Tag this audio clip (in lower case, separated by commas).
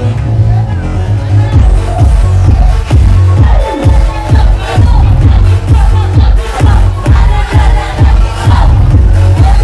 music, speech